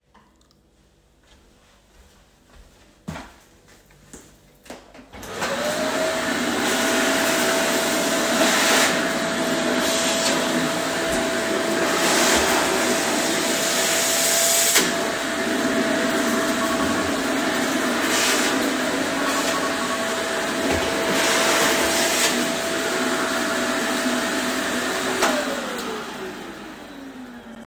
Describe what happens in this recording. I walked across the room and turned on the vacuum cleaner. I was vacuuming when my phone rang